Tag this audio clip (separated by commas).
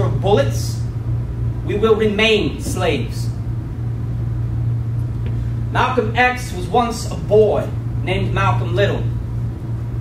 Speech, inside a large room or hall